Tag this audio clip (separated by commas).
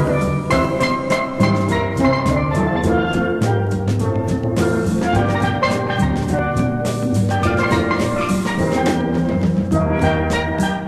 Music, Steelpan, Drum